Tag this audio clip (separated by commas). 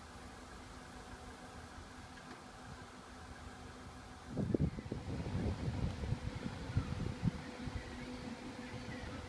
Speech